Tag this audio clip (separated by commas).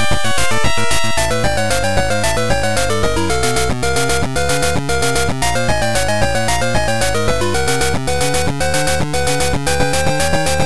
Music